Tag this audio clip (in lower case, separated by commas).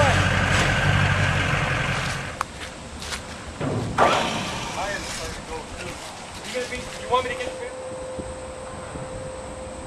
speech, vehicle